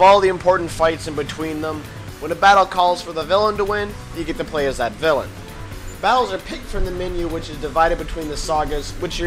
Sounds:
Music, Speech

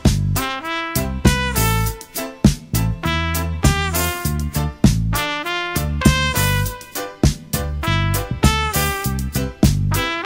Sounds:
Music

